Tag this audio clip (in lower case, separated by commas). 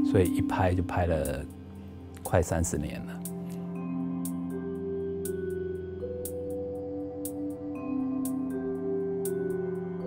speech, music